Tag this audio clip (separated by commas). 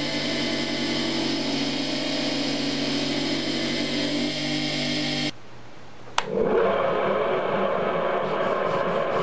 forging swords